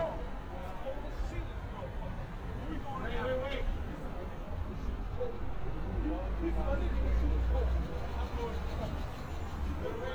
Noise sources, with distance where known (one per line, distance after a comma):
person or small group talking, near
person or small group shouting, near